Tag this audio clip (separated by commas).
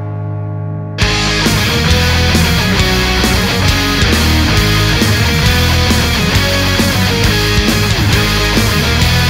Music